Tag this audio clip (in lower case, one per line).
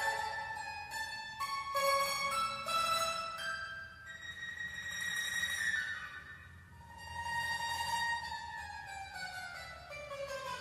music
musical instrument